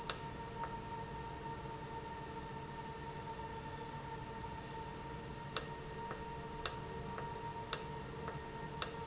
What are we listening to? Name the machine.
valve